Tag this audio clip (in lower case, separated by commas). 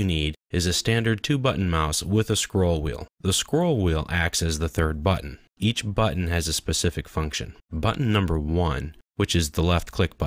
speech